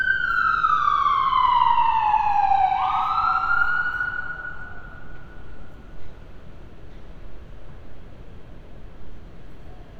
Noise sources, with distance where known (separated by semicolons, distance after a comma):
siren, near